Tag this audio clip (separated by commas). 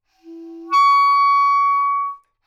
Musical instrument, Music, Wind instrument